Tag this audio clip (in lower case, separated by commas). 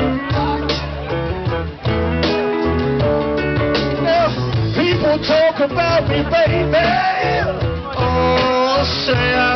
music, male singing